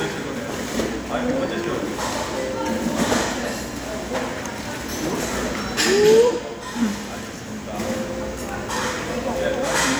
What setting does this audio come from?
restaurant